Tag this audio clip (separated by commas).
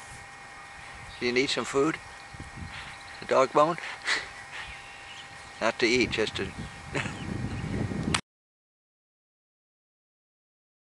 Speech